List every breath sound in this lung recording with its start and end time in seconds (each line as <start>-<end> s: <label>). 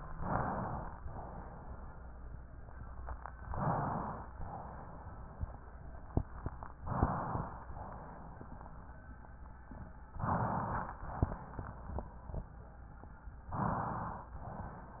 0.06-0.99 s: inhalation
1.06-2.30 s: exhalation
3.40-4.33 s: inhalation
4.42-5.66 s: exhalation
6.77-7.71 s: inhalation
7.80-9.03 s: exhalation
10.21-11.14 s: inhalation
11.12-12.35 s: exhalation
13.43-14.36 s: inhalation
14.40-15.00 s: exhalation